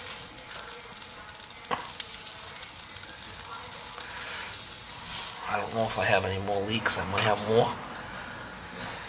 A sizzle of welding metal and a man is talking in the background